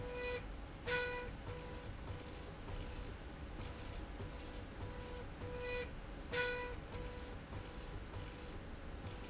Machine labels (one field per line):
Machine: slide rail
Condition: normal